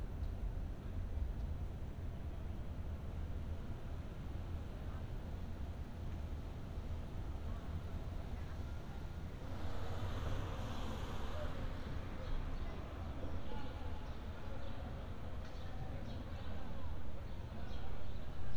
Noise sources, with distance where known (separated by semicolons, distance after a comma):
background noise